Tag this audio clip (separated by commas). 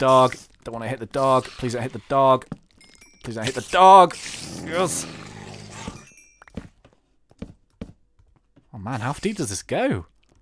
Speech